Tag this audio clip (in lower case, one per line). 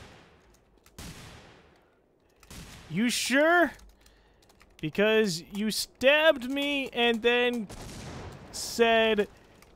speech
fusillade